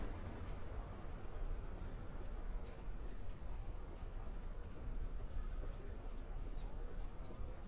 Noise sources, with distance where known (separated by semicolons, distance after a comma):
person or small group talking, far